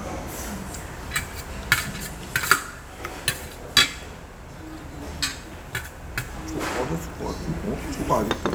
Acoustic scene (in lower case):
restaurant